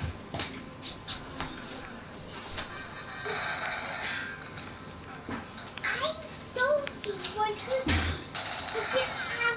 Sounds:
music, inside a small room, child speech, speech

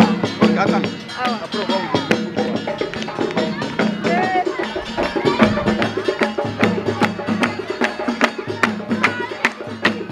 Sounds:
tubular bells

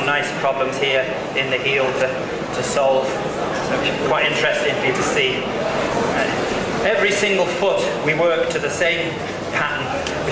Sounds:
speech

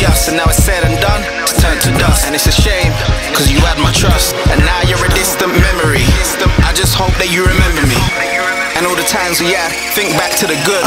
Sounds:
music, sampler

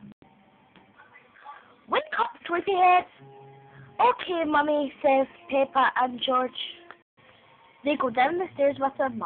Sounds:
speech

